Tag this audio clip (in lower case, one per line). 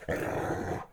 dog
pets
animal